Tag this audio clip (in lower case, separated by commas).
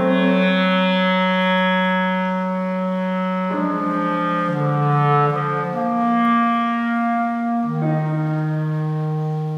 piano, keyboard (musical)